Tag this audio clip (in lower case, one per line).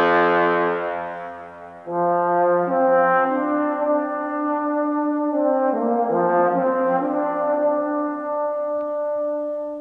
music
trombone